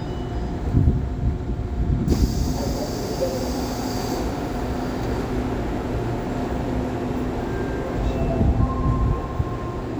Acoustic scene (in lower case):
subway train